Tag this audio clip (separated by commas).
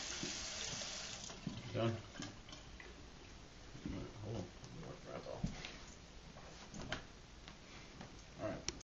Water tap, Sink (filling or washing), Water